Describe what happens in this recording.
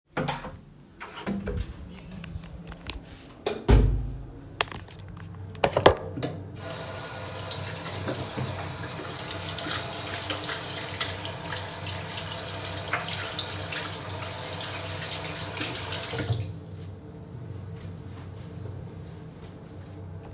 I opened the door, turned on the light, closed the door, put my phone on the shelf, turned on water, turned off water and wiped hands with a towel